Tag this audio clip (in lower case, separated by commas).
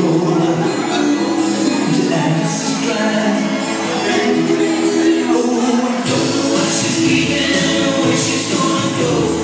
music